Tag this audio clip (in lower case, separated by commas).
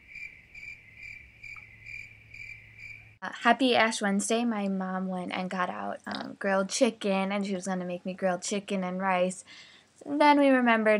speech